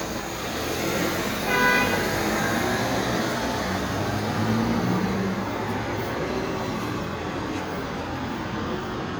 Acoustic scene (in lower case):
street